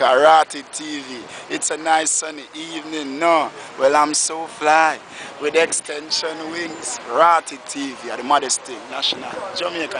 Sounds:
Speech

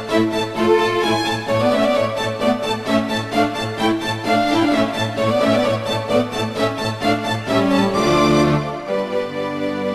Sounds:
Violin, Bowed string instrument

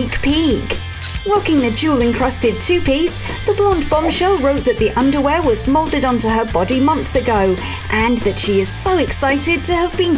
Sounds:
Speech, Music

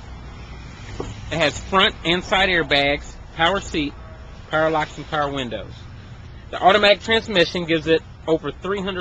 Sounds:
Speech

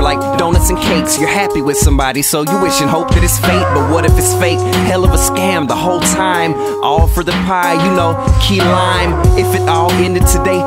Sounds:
Music

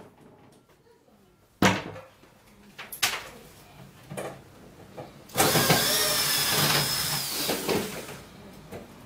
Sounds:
sliding door

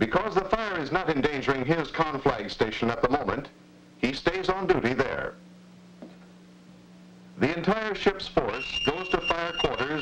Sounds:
Fire alarm

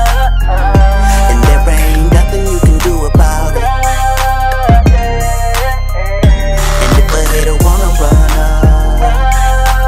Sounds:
Music

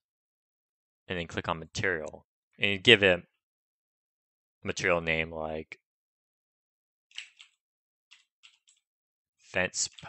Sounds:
Speech

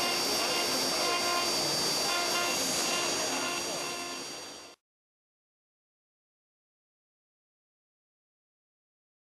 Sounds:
Speech

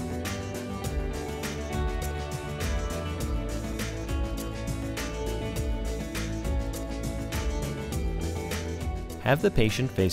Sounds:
Speech, Music

